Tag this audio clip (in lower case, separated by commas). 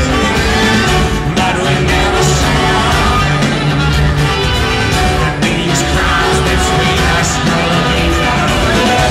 inside a public space, music, singing